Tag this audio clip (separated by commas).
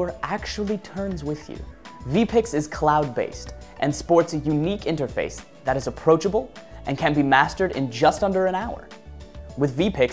Music, Speech